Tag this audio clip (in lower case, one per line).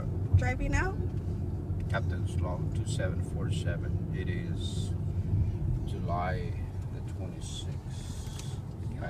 speech